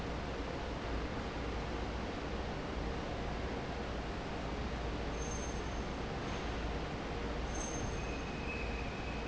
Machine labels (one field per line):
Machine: fan